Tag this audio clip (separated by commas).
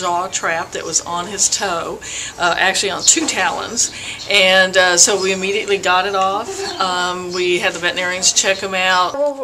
Animal, Speech, Bird